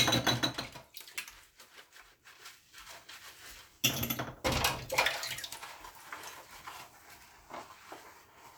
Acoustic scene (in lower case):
kitchen